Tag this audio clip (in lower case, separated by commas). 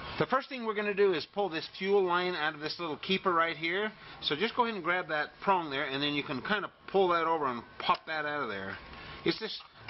speech